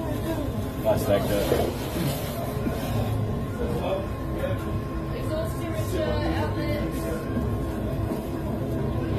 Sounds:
speech

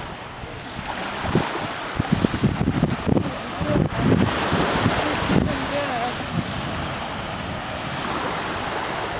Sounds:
speech

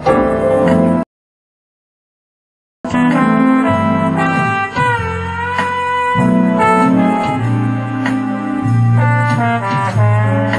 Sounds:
hammond organ
organ

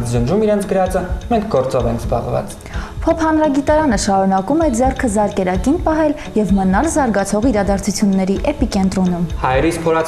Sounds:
speech
music

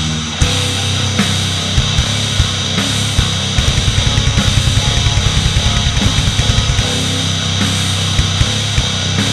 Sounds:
music

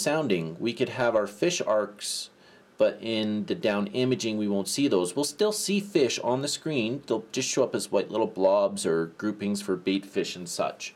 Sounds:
speech

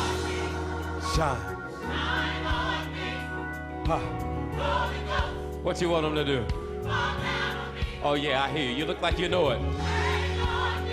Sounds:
music
speech

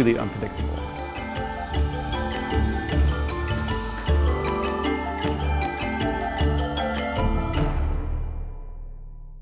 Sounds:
bird wings flapping

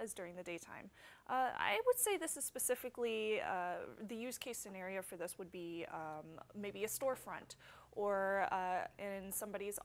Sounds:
speech

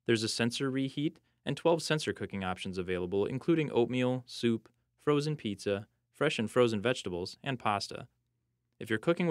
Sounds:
speech

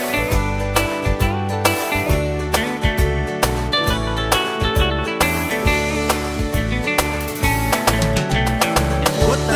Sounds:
pop music
music

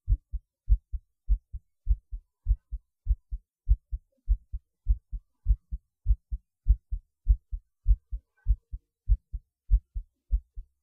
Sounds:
heartbeat

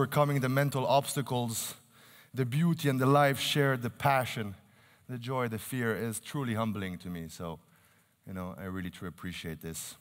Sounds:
narration
speech
male speech

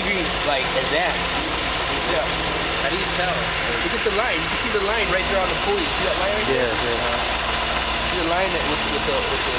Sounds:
engine
medium engine (mid frequency)
speech
idling

